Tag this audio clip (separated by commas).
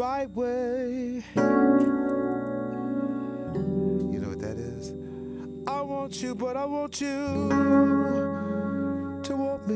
Electric piano, Singing